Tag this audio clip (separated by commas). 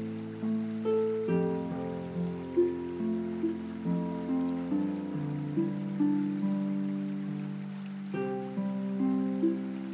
Music